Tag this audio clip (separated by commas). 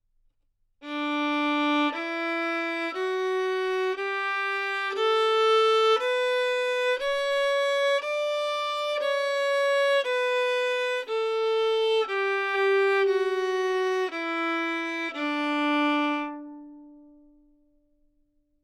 Music, Musical instrument, Bowed string instrument